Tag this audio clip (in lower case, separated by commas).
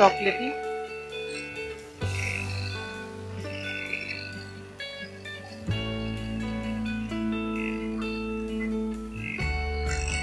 speech, music